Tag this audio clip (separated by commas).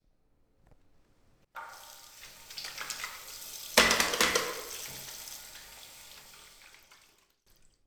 Water